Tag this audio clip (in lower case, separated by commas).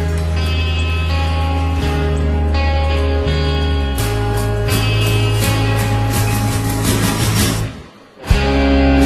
plucked string instrument, guitar, musical instrument, music